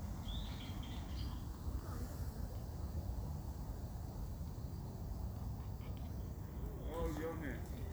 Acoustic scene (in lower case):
park